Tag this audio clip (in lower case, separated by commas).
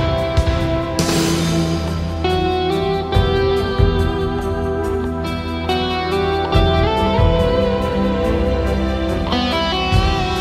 music, steel guitar